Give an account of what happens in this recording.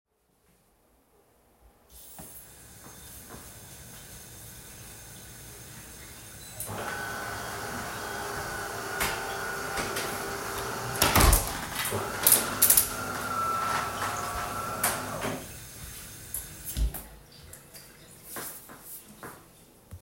I turned the tap on to fill up a cup of water, during which I turned on the coffee machine and went to close a window, turning the water off when the cup was full.